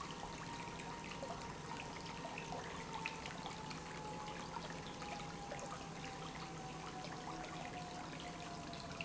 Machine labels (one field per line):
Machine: pump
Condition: normal